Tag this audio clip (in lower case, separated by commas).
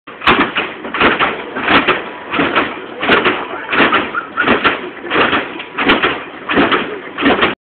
speech, car, vehicle